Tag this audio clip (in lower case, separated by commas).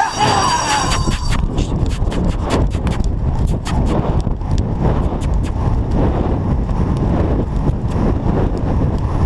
clip-clop, horse clip-clop, animal